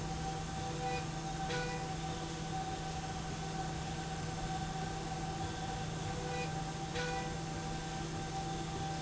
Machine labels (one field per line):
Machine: slide rail